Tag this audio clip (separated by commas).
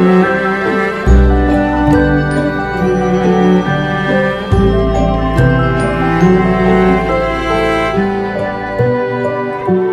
Music